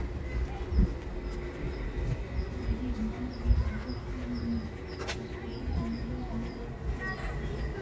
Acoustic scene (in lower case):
residential area